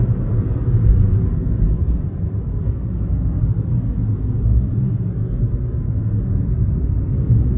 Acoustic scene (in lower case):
car